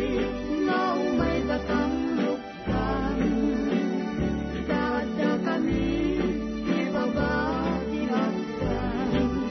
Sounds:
music
christmas music
christian music

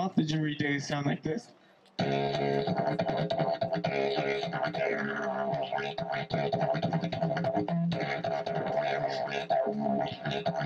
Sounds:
beatboxing
music

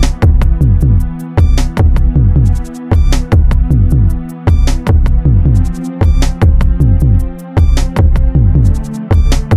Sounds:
music

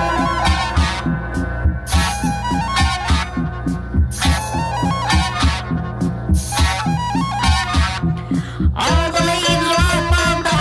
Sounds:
music

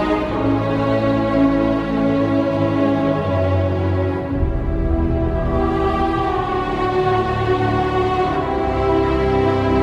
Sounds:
music
background music
theme music
video game music

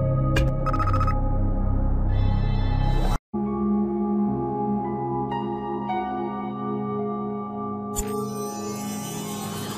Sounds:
music
new-age music

